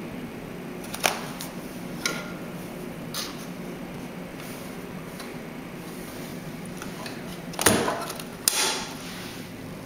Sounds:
Printer

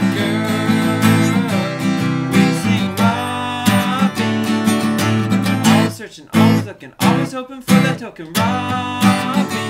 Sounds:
Music

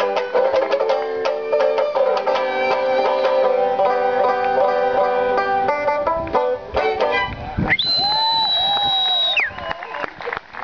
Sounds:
Banjo, Music, Violin

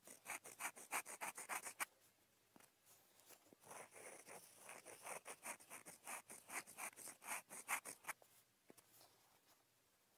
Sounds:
writing on blackboard with chalk

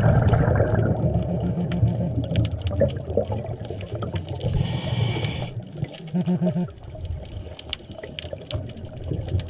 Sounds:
scuba diving

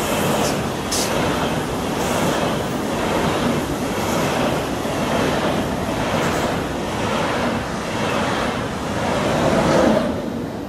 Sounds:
train wagon, Train, Rail transport, Vehicle

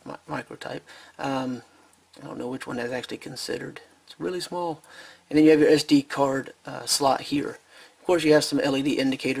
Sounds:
Speech

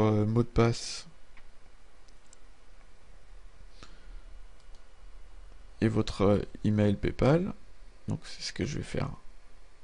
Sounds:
Speech

